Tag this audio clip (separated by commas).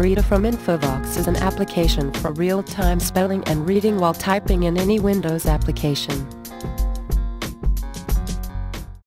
Speech, Music, Speech synthesizer